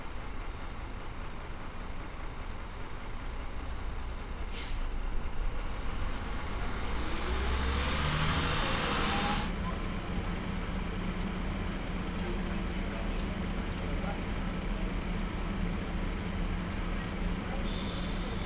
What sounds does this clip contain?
large-sounding engine